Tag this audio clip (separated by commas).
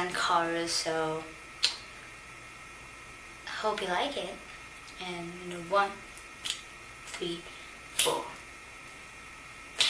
Speech